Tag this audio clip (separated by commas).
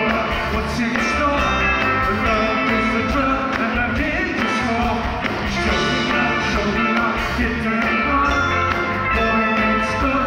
Music, Rhythm and blues, Blues